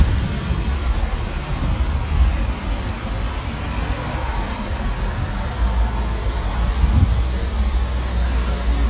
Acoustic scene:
street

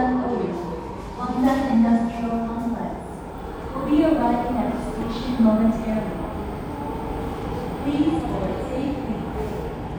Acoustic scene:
subway station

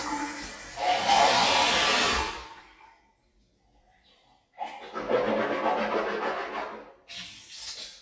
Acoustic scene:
restroom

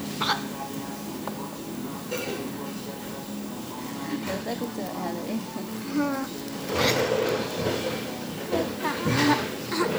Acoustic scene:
cafe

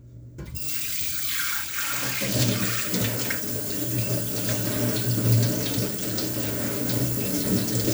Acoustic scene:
kitchen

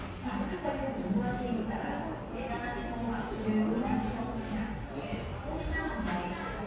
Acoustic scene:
cafe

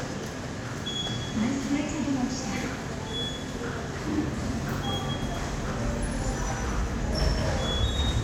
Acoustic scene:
subway station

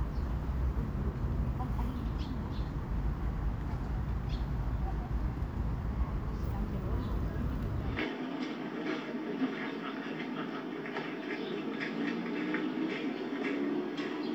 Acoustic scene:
park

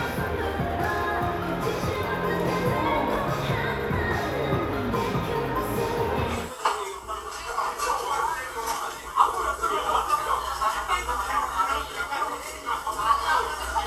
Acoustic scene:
crowded indoor space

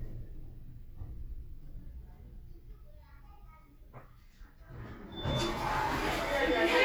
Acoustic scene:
elevator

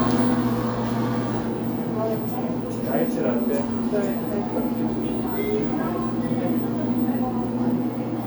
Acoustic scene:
cafe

